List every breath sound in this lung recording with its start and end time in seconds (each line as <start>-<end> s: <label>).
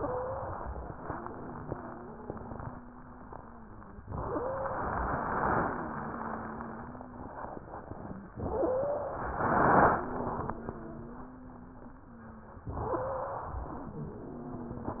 0.00-0.59 s: wheeze
0.00-0.89 s: inhalation
1.02-4.00 s: wheeze
4.06-5.12 s: inhalation
4.25-4.97 s: wheeze
5.46-7.44 s: wheeze
8.33-9.43 s: inhalation
8.44-9.19 s: wheeze
9.92-12.60 s: wheeze
12.77-13.51 s: wheeze
12.77-13.93 s: inhalation
13.98-15.00 s: wheeze